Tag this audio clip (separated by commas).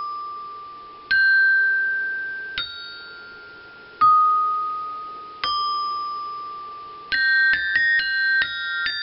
playing glockenspiel